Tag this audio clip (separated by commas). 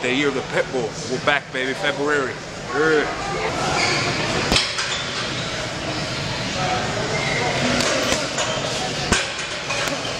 Speech